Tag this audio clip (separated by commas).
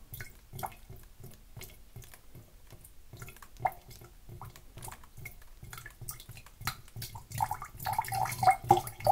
Drip